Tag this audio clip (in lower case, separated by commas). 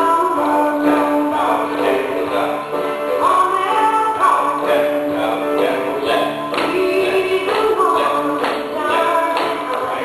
blues, music, independent music, dance music